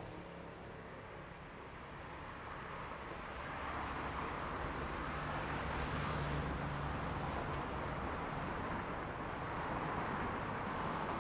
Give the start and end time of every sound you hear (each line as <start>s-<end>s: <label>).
0.0s-1.1s: motorcycle
0.0s-1.1s: motorcycle engine accelerating
0.1s-11.2s: car
0.1s-11.2s: car wheels rolling